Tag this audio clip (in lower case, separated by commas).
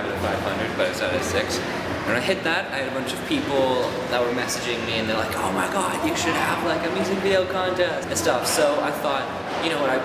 speech